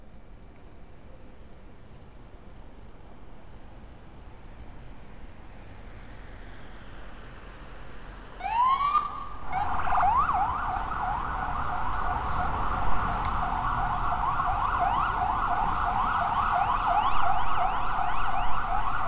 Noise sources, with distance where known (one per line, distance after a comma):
siren